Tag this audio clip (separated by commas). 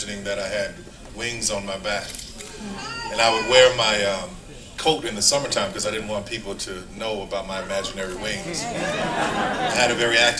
monologue, Male speech, Speech